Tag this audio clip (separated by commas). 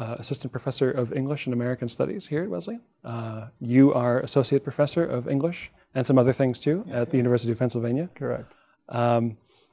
Speech